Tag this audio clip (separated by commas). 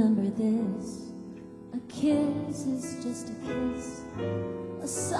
Music